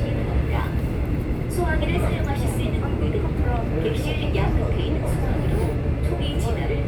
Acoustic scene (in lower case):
subway train